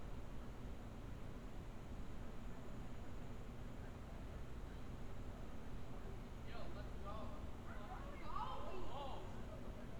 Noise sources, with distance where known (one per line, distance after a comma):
person or small group talking